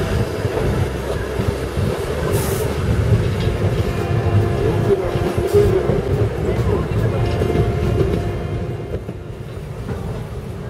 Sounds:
Rail transport, Speech, Vehicle, Train

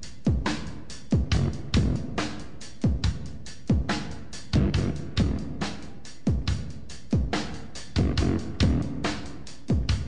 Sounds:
Music

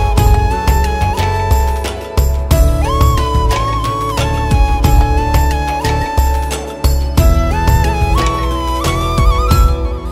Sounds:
Music

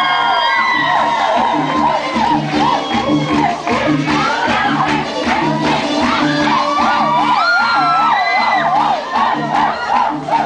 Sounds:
Music, Speech

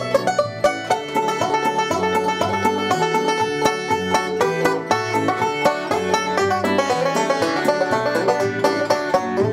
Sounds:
Musical instrument, Plucked string instrument, playing banjo, Country, Banjo, Music, Bluegrass

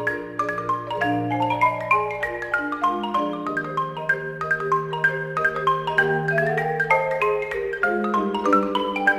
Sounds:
Music, Vibraphone, Percussion, xylophone, Musical instrument

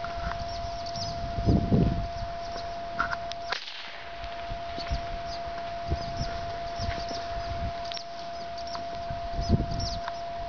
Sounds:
Animal

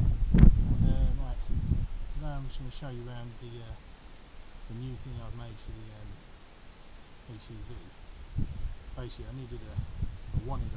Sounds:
Speech

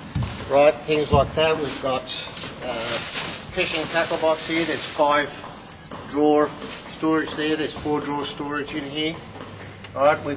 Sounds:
Speech

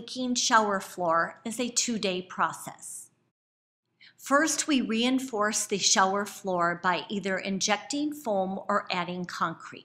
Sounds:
Speech

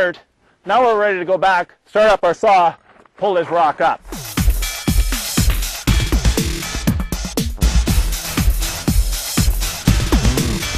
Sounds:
Music, Electronica, Speech

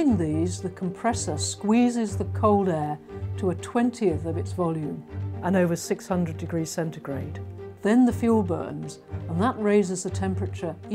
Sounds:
Music, Speech

